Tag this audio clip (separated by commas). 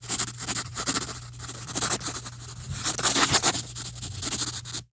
home sounds, Writing